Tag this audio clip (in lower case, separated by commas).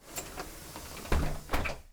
motor vehicle (road), bus, vehicle